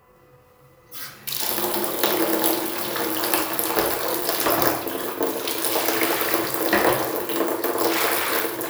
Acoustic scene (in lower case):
restroom